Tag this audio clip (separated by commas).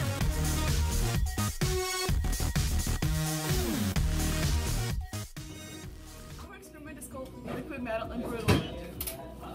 Speech, Music